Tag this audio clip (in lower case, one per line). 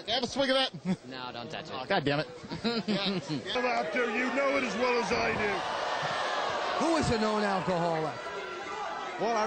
speech